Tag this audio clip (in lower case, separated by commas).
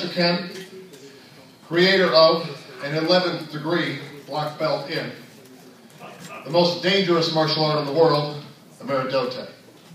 speech, man speaking